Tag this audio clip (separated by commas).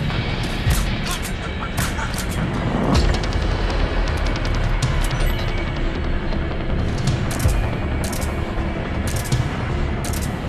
Music